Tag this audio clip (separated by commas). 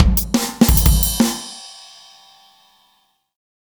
Bass drum, Music, Musical instrument, Percussion, Drum, Drum kit